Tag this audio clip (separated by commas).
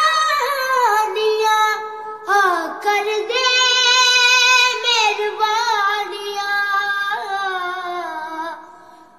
child singing